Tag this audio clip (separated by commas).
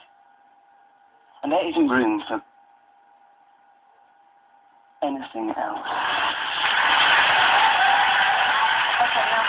Speech, man speaking